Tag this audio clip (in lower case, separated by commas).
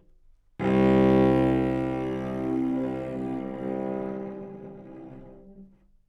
bowed string instrument, music, musical instrument